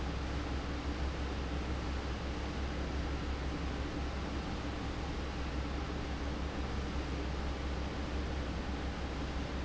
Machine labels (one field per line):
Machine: fan